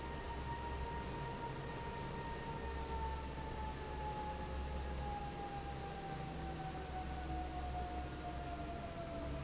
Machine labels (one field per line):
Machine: fan